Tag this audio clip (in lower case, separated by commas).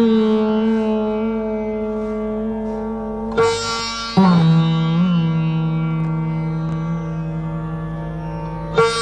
music, sitar